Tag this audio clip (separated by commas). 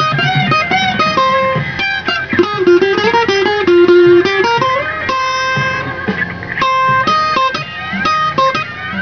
Tapping (guitar technique), Music, Bowed string instrument, Electric guitar, Plucked string instrument, Guitar, Musical instrument